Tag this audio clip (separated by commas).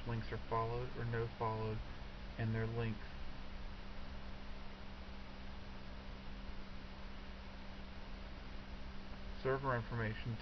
Speech